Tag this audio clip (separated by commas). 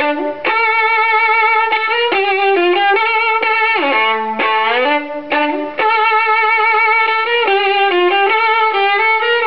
Musical instrument, Music, fiddle